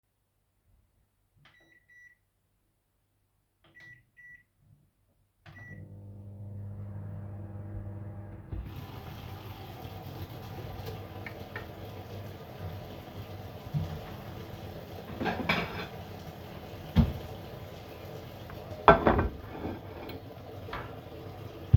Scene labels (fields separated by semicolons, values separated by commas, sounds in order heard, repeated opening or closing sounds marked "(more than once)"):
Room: kitchen; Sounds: microwave, running water, cutlery and dishes